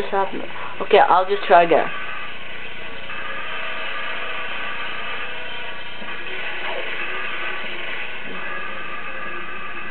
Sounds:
speech

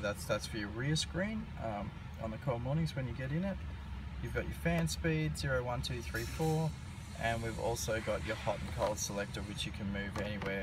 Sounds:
speech

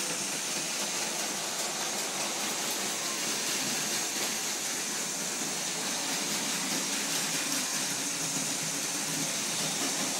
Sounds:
rain

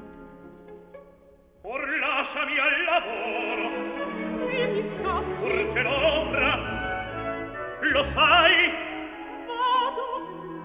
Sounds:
music
opera

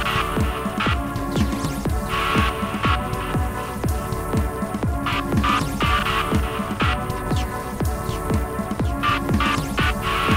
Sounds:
music

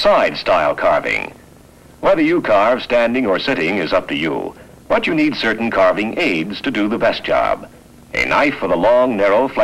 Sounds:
speech

